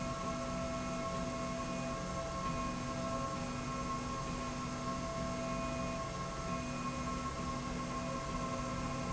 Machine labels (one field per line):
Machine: slide rail